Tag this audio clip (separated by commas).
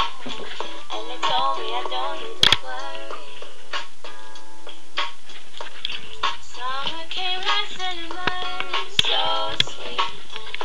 Music, inside a small room